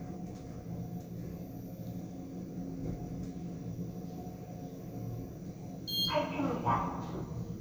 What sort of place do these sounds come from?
elevator